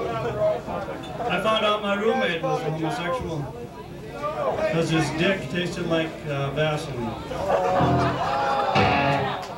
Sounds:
Music, Speech

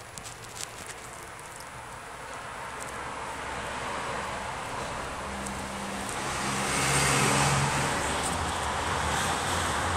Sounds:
Motor vehicle (road)

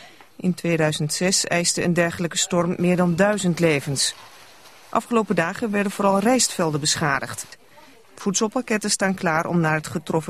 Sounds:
Speech

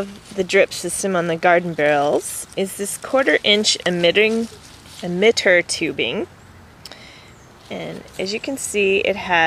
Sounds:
Speech

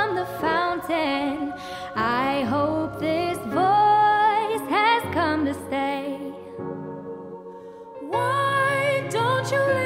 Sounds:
Music

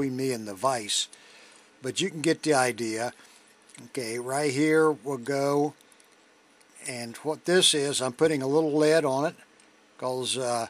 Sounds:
Speech

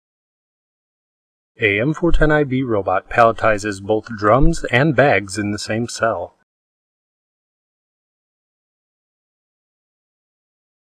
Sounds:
Speech

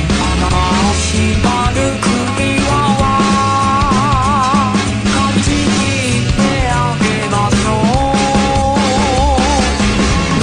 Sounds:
Music

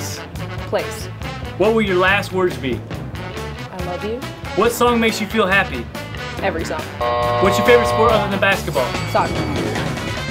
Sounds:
Speech, Music

